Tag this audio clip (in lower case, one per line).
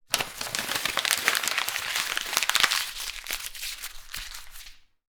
crinkling